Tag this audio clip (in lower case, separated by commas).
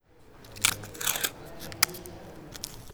home sounds, duct tape